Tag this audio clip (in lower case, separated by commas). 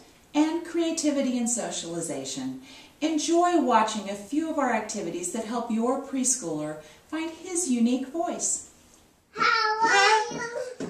people babbling, babbling, child speech, speech